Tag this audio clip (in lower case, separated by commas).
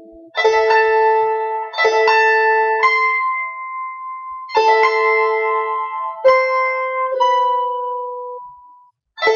pizzicato, harp